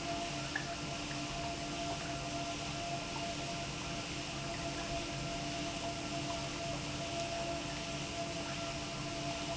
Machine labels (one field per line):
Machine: pump